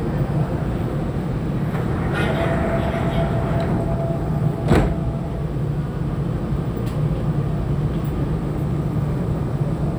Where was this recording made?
on a subway train